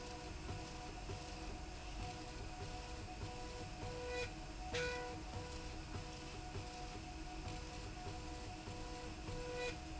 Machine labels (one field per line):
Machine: slide rail